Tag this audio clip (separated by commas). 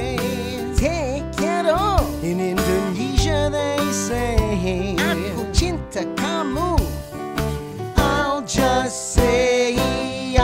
Music for children